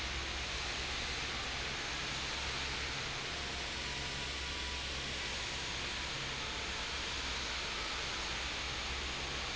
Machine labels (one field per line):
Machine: fan